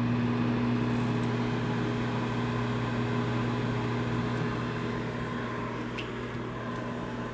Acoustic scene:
kitchen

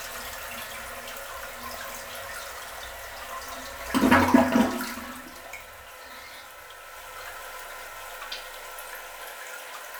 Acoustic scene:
restroom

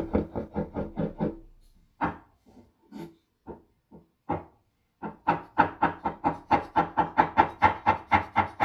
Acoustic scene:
kitchen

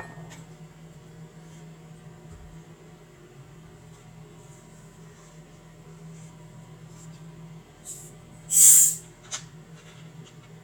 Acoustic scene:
kitchen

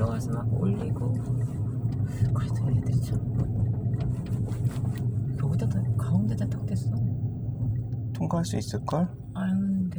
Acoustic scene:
car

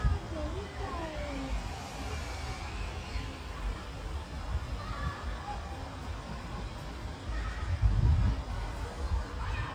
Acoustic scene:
residential area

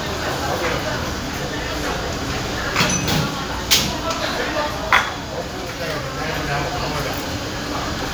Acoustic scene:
crowded indoor space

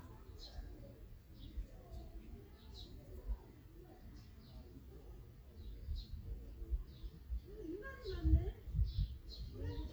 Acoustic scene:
park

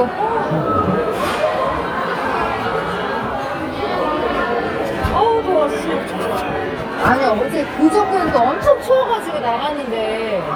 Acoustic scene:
crowded indoor space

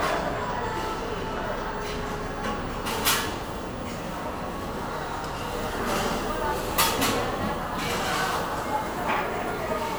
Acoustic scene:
cafe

